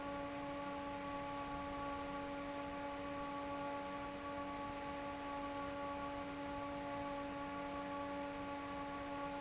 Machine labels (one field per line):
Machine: fan